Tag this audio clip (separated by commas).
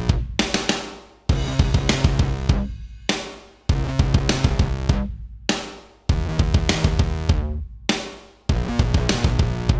Musical instrument, Music